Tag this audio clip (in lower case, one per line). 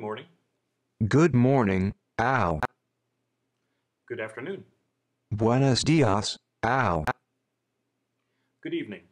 male speech
speech